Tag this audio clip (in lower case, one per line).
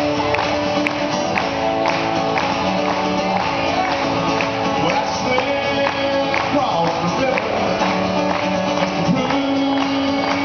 music